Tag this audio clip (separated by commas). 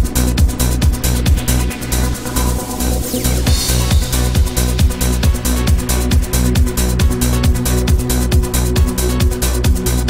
Music, Trance music